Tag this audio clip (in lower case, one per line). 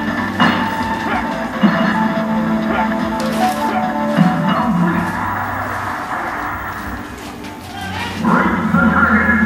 speech
music